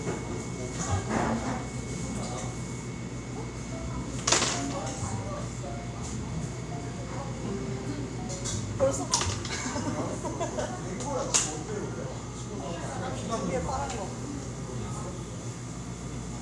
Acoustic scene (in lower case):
cafe